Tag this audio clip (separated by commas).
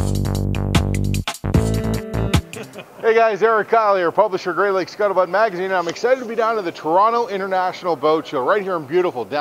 Speech, Music